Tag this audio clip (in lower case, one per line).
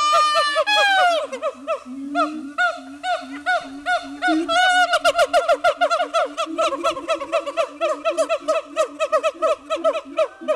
gibbon howling